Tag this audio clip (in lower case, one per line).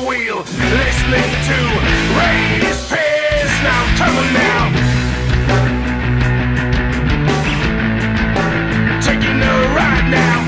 music
funk